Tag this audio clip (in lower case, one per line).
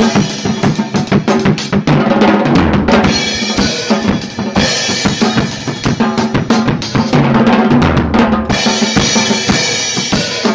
musical instrument
drum kit
bass drum
music
drum